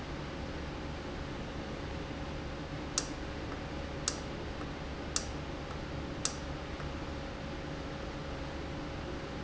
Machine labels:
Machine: valve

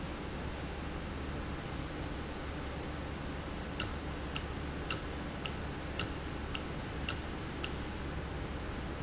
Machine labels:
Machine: valve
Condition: normal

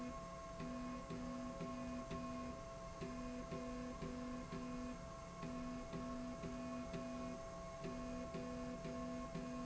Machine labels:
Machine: slide rail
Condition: normal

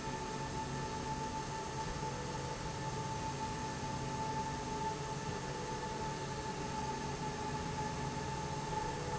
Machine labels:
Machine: slide rail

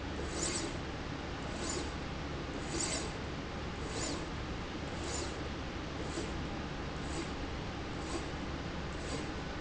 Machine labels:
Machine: slide rail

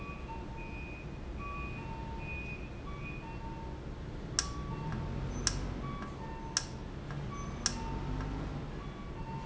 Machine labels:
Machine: valve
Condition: normal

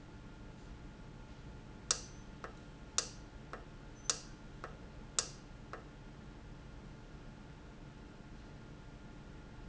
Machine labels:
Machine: valve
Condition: normal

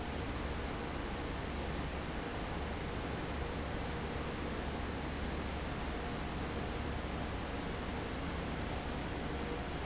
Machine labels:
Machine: fan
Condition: abnormal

